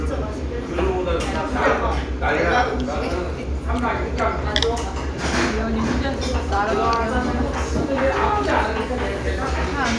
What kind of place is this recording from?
restaurant